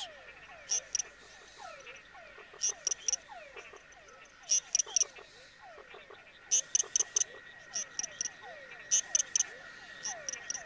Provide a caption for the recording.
A frog chirps and other frogs and crickets chirp in the background